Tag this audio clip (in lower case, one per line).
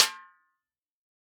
music
percussion
musical instrument
drum
snare drum